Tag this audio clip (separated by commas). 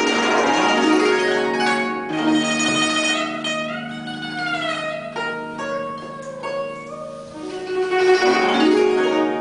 Zither, Music